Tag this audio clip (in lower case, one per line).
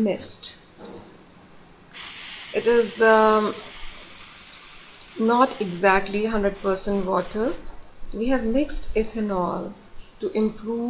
speech